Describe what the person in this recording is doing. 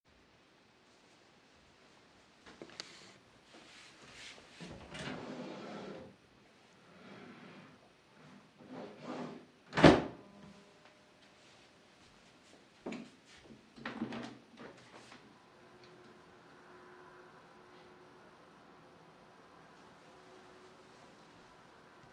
A person is first going to the drawer and then opening it. After that he goes to the window and opens it. All of that happens while a person is typing on his keyboard in the back of the room.